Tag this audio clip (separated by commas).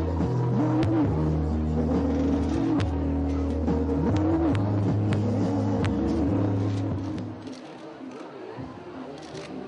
Music